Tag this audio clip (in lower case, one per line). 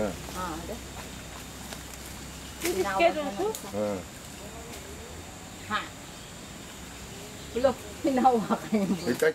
speech